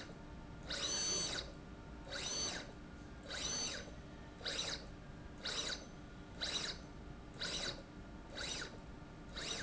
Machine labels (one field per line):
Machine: slide rail